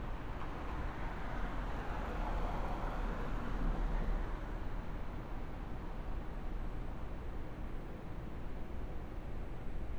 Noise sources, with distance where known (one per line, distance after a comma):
background noise